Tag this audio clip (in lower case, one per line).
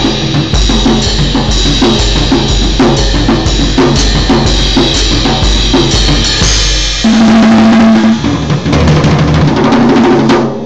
whack
snare drum
drum kit
musical instrument
drum
cymbal